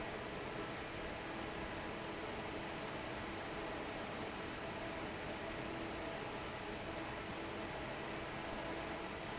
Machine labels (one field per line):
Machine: fan